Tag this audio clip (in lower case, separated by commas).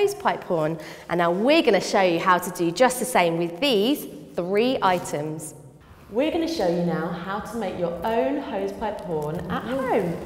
speech